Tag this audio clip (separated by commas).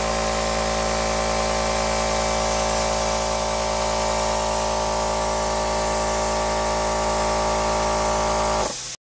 Spray